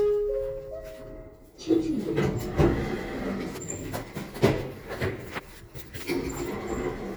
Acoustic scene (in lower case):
elevator